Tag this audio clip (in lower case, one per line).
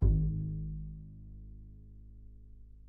musical instrument
music
bowed string instrument